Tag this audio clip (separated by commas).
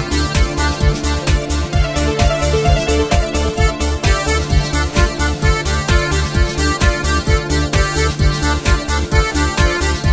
Techno, Electronic music, Music